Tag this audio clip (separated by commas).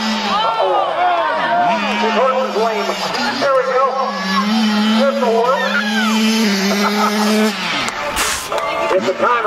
Vehicle, Motorcycle, Speech